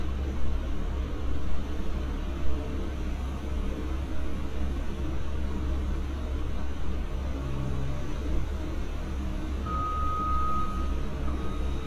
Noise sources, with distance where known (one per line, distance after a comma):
reverse beeper, near
unidentified alert signal, near